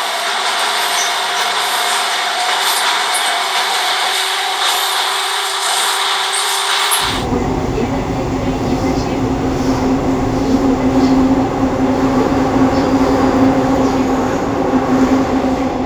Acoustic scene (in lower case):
subway train